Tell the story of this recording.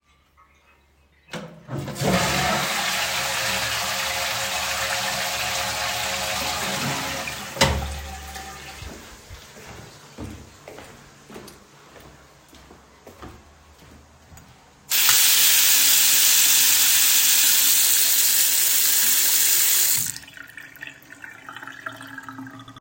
I flush the toilet and then run the tap to wash my hands.